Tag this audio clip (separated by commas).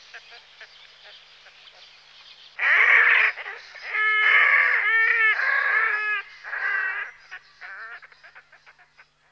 Duck, Bird